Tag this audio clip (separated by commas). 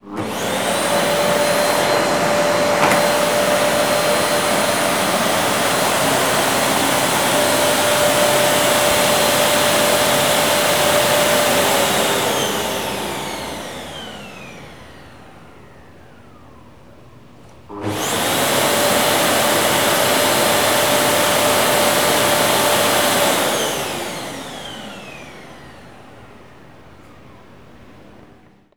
Domestic sounds